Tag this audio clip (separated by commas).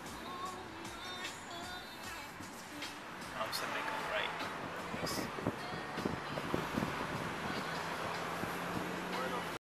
Vehicle, Car, Music, Car passing by, Speech